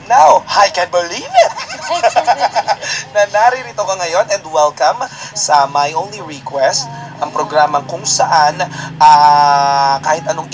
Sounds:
radio, music, speech

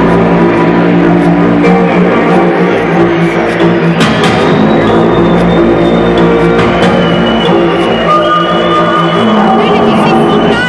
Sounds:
speech, music

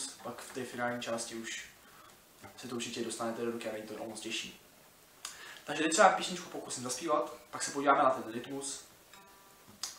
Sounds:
speech

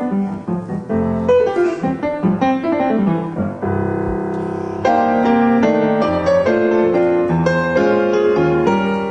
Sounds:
keyboard (musical), piano

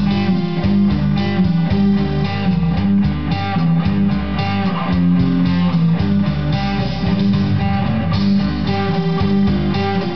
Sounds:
music, guitar, plucked string instrument, musical instrument, acoustic guitar, strum

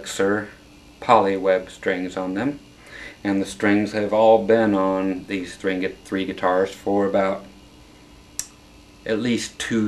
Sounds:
speech

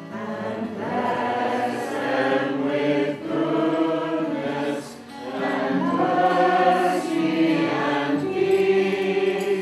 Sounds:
middle eastern music, music

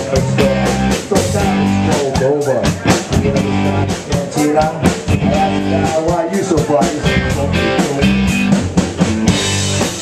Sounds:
male singing, music

